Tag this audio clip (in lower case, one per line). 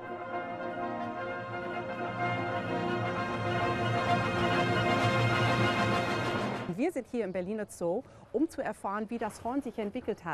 music
brass instrument
speech